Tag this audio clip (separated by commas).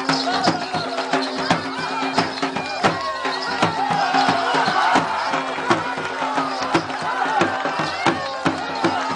Music, Speech